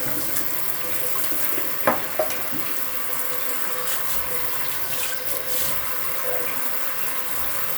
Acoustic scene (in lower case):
restroom